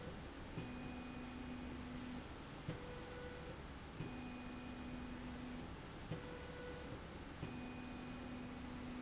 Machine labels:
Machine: slide rail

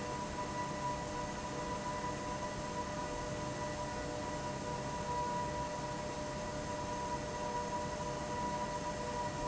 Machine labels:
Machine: fan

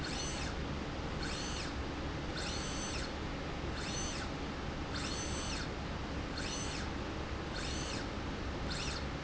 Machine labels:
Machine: slide rail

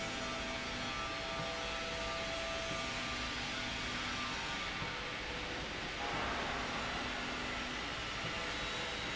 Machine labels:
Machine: slide rail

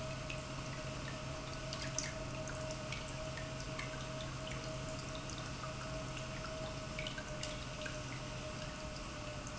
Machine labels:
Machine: pump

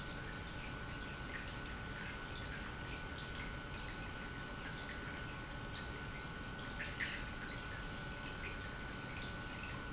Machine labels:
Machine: pump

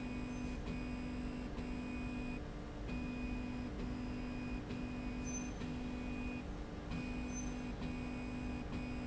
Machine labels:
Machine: slide rail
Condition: normal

